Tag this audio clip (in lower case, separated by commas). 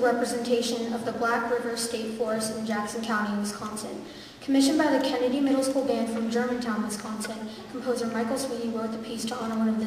speech